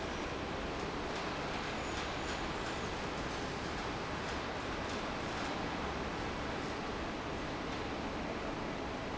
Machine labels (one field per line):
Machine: fan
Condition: normal